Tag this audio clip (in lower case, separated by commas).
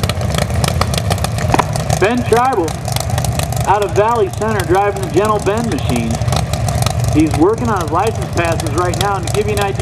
vehicle, speech, car